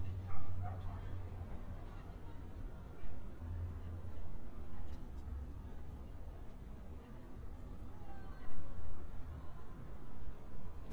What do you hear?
person or small group shouting, dog barking or whining